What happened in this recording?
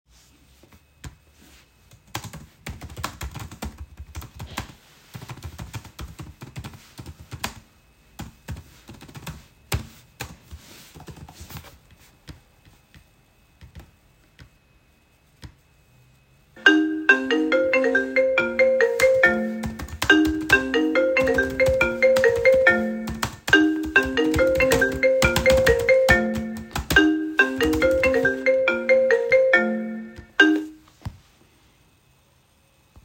The recorder remains static on a desk. Keyboard typing is heard continuously, and a phone notification or ringtone occurs during the typing. The overlap between typing and phone ringing is clearly audible.